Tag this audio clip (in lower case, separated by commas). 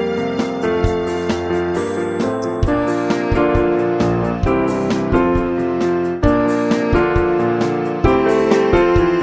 music